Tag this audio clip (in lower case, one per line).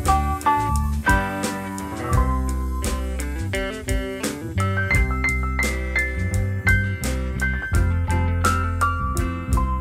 music